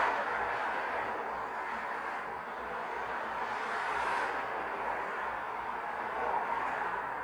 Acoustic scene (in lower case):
street